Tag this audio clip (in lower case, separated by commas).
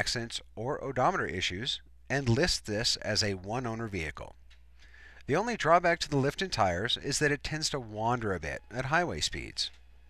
speech